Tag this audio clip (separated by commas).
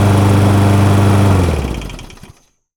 Engine